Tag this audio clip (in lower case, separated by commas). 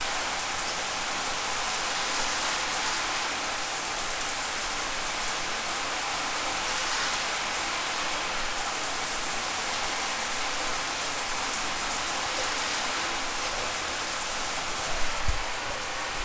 bathtub (filling or washing), domestic sounds